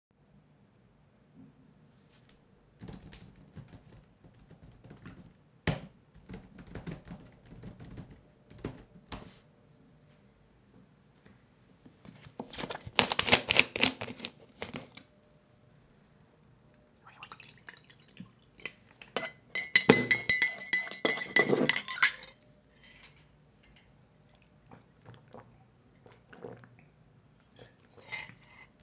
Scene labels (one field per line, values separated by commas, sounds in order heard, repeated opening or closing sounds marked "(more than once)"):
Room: bedroom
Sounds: keyboard typing, cutlery and dishes